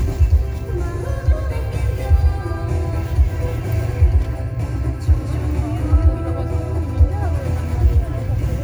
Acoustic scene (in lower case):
car